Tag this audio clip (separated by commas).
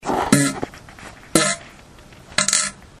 Fart